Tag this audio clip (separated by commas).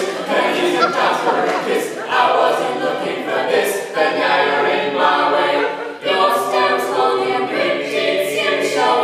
A capella